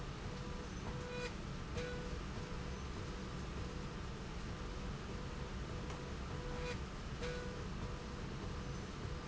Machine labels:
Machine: slide rail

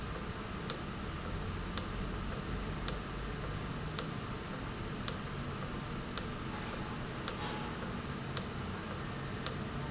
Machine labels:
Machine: valve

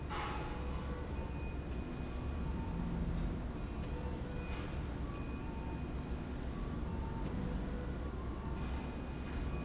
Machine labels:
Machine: slide rail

